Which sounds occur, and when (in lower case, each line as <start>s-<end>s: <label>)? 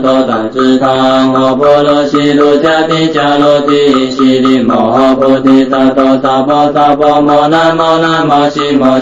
0.0s-9.0s: male singing
0.0s-9.0s: music